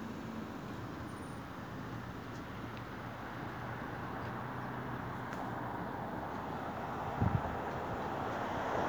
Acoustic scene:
street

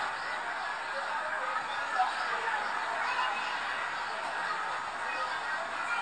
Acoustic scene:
residential area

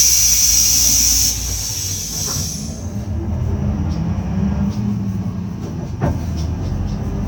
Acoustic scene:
bus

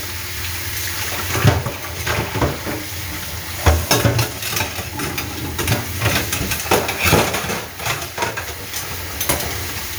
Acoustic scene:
kitchen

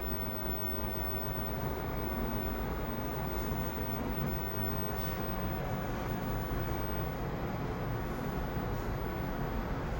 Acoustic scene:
elevator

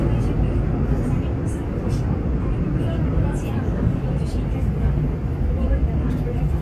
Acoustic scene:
subway train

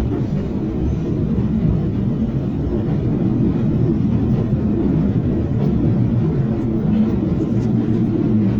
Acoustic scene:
subway train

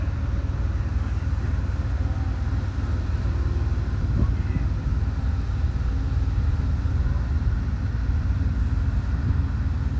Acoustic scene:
residential area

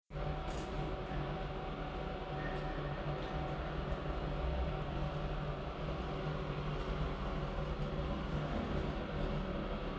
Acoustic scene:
elevator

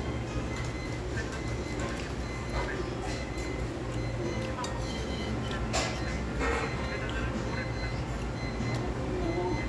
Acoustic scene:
restaurant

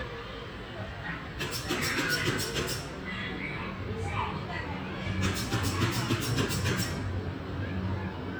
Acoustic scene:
residential area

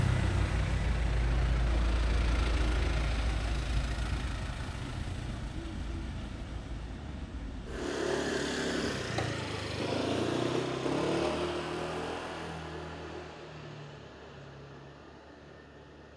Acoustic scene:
residential area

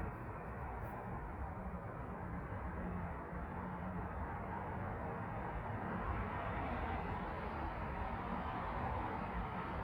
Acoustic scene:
street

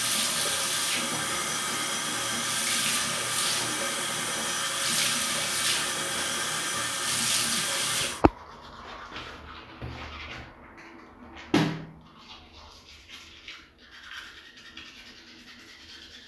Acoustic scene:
restroom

